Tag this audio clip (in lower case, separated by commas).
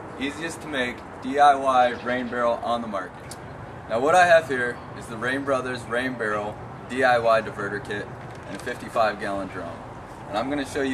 speech